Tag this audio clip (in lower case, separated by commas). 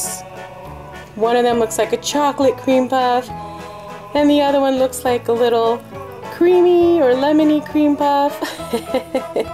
speech, music